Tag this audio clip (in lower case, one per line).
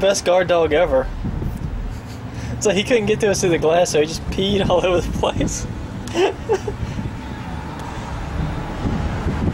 speech